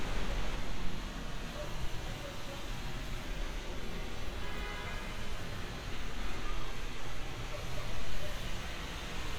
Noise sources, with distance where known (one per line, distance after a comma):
car horn, near